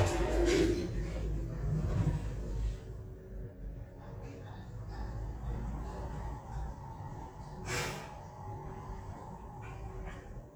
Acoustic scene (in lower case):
elevator